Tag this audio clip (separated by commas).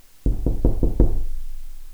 Knock, Domestic sounds, Door